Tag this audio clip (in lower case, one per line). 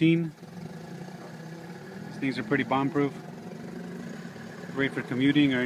speech